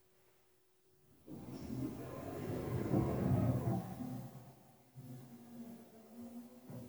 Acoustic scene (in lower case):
elevator